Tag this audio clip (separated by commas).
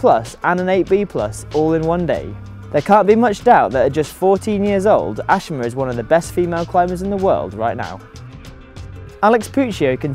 Music, Speech